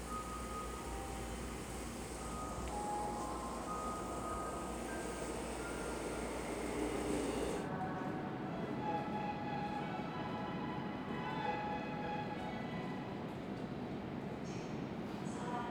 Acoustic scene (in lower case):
subway station